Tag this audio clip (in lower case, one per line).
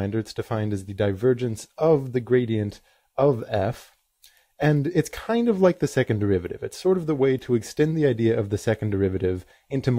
speech